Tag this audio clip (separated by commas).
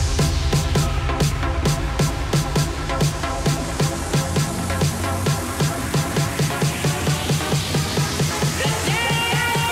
House music, Electronic dance music, Music, Song